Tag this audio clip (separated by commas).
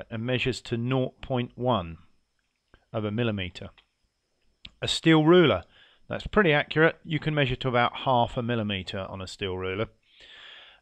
Speech